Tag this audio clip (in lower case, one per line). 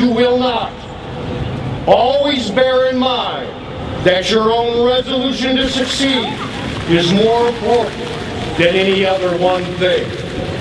speech
run